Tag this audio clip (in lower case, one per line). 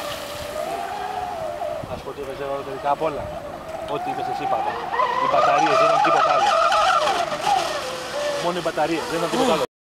speech
stream